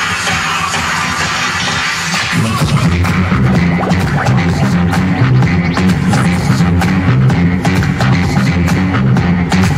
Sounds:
music
electronic music

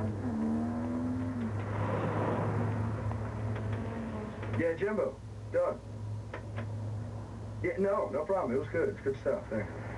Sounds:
speech
outside, urban or man-made

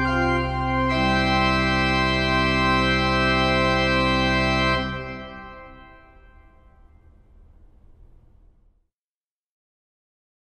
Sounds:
musical instrument
organ
keyboard (musical)

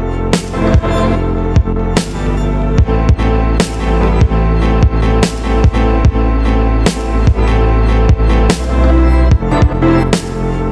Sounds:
music

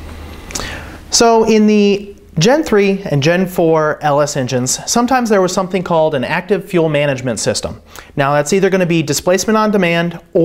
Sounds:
speech

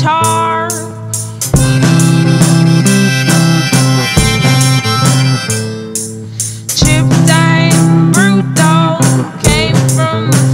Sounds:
musical instrument
strum
plucked string instrument
music
guitar

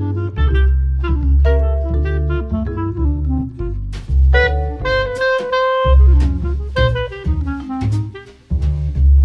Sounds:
music

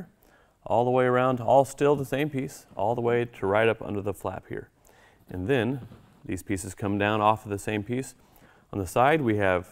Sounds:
speech

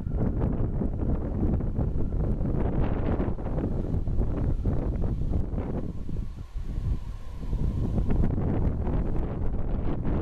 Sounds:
wind

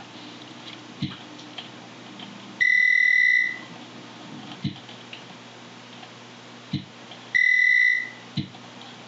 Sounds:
speech

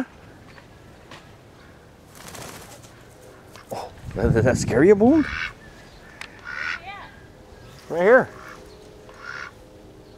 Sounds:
goose
fowl
honk

